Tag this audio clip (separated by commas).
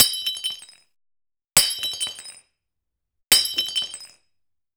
Shatter, Glass